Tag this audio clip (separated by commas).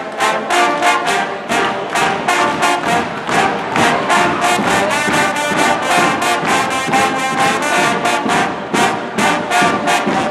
Music, Trombone, Musical instrument